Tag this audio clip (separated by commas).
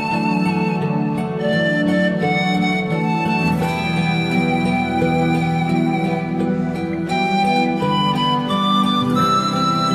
Music